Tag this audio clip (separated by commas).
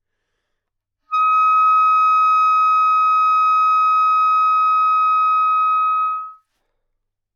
Music, Musical instrument, woodwind instrument